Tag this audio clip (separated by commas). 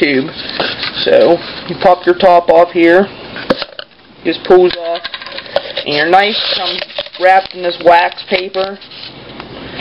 Speech